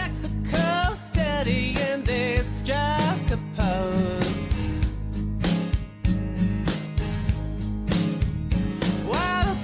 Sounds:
music

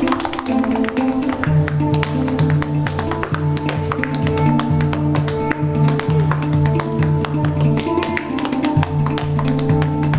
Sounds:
tap
music

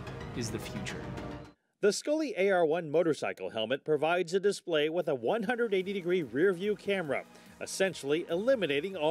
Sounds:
speech

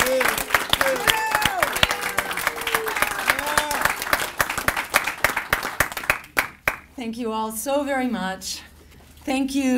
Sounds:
narration
speech
woman speaking

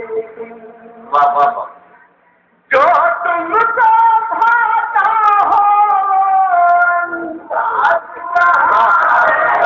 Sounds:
speech

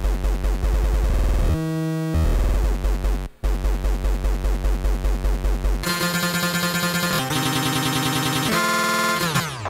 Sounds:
music
electronica

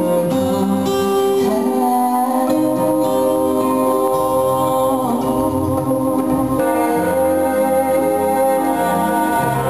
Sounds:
inside a large room or hall
music

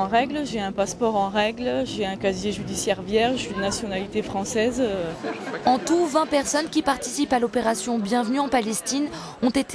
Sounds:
speech

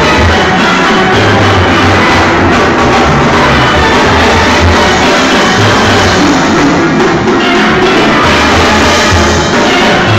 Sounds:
steelpan
music

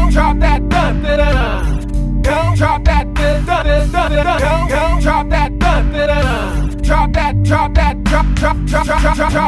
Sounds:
music
electronic music

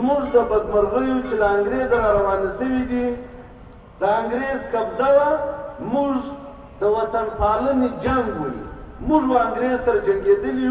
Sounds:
speech
narration
male speech

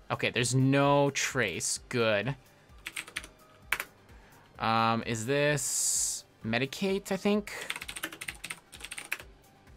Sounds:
typing

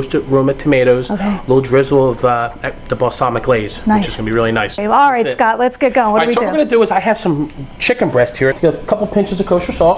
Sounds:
speech

